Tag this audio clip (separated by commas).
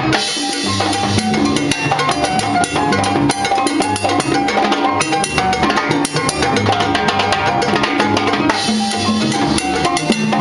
playing timbales